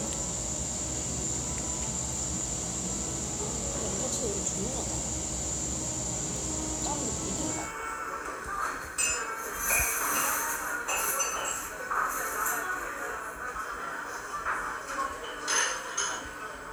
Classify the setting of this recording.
cafe